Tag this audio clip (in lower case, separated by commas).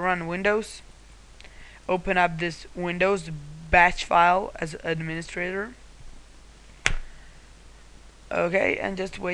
inside a small room, speech